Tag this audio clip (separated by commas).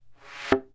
thud